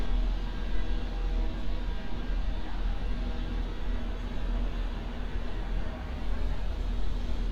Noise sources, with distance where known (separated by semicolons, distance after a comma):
small-sounding engine